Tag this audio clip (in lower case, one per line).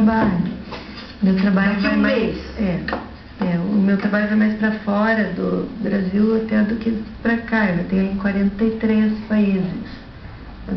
speech